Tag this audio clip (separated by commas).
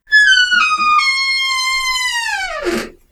Squeak, Door, home sounds